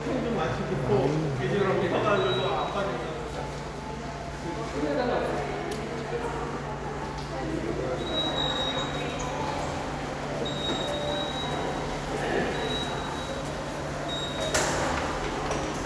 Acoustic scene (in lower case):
subway station